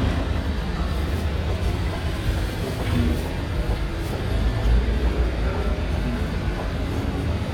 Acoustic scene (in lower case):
street